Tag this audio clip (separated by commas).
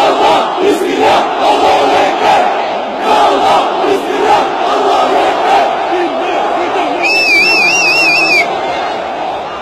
people crowd, Crowd